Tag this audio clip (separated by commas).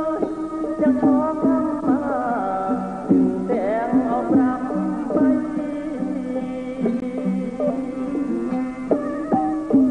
Folk music, Traditional music, Sad music, Independent music, Music